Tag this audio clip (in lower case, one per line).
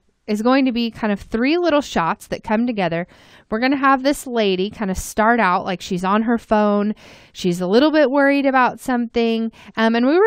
speech